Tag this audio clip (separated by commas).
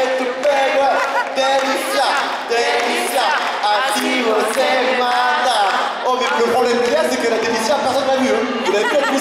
Speech